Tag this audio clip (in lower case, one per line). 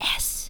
whispering
human voice